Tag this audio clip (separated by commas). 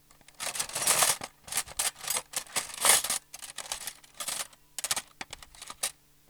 Domestic sounds, Cutlery